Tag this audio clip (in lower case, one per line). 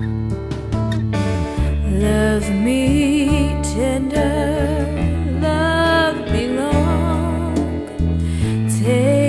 christmas music
music
singing